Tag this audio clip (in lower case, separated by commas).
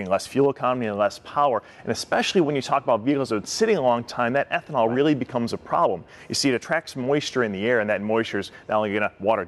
speech